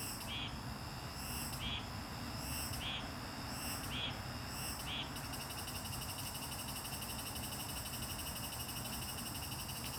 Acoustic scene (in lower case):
park